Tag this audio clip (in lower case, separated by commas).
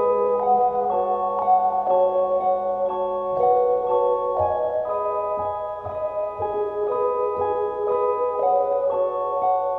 percussion, glockenspiel, marimba, mallet percussion